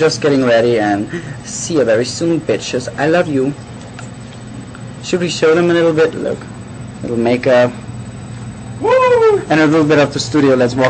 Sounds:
Speech

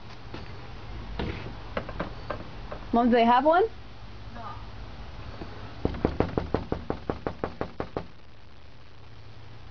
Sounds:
Speech

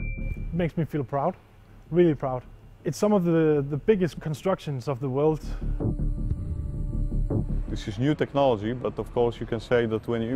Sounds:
Speech, Music

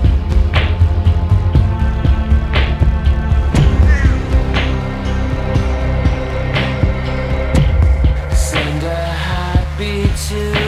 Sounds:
Music

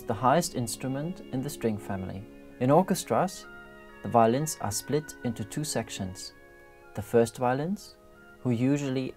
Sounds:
Music, Violin, Musical instrument, Speech

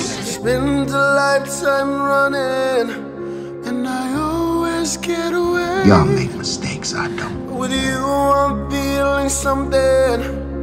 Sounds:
Music, Speech

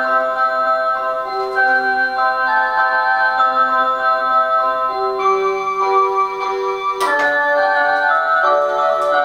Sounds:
Music, Clock

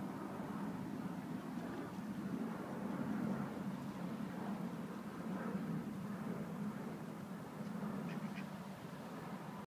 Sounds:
Crow, Caw

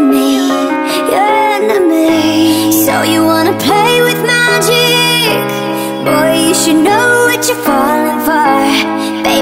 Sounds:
Music

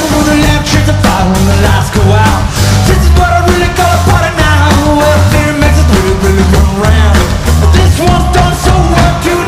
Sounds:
Music

